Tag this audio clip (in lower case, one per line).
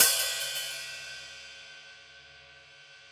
music
hi-hat
musical instrument
percussion
cymbal